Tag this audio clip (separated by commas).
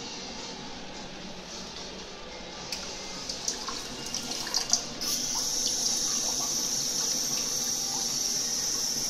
Water